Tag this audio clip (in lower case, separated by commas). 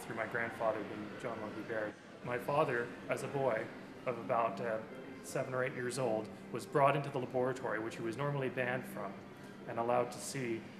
speech, music